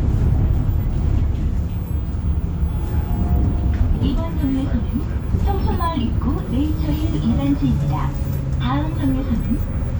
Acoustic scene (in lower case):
bus